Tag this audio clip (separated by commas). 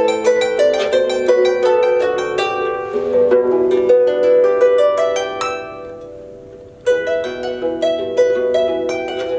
playing harp